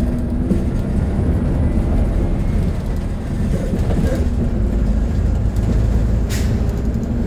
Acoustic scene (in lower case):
bus